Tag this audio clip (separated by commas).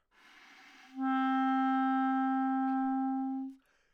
Music, Musical instrument, woodwind instrument